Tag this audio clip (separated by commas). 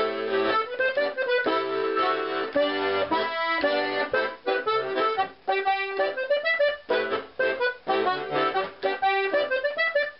Folk music, Musical instrument, Music, playing accordion, Accordion